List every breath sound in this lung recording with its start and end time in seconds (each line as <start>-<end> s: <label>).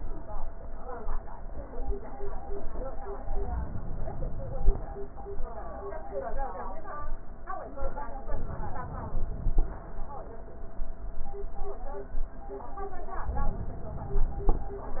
3.27-4.77 s: inhalation
8.21-9.71 s: inhalation
9.74-10.70 s: exhalation